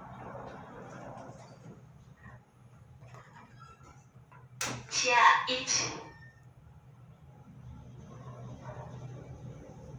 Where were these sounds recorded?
in an elevator